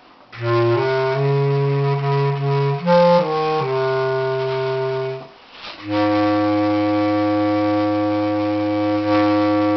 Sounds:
Clarinet

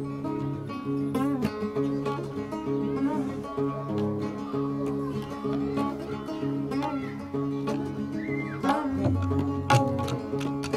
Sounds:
Speech, Music

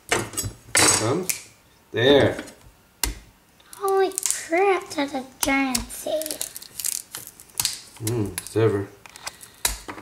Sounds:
inside a small room, Speech

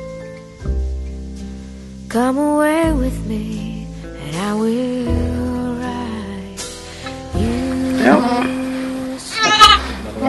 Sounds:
Sheep, Music, Domestic animals, Bleat

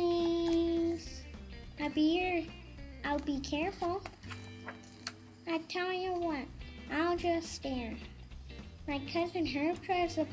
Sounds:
Music, Speech

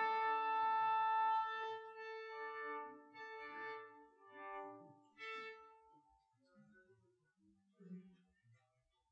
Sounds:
Orchestra, Violin, Musical instrument, Music

